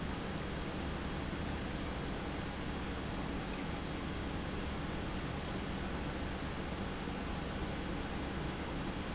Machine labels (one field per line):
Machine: pump